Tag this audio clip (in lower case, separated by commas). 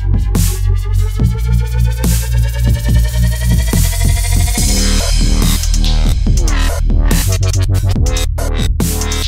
electronic music, music, drum machine, dubstep